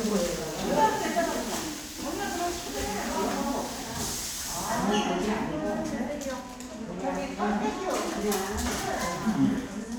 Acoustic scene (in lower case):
crowded indoor space